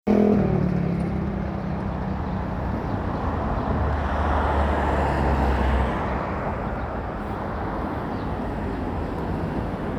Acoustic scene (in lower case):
residential area